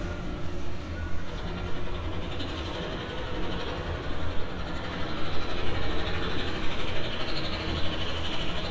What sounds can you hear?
unidentified impact machinery